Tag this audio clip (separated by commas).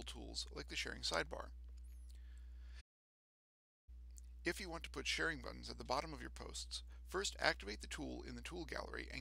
Speech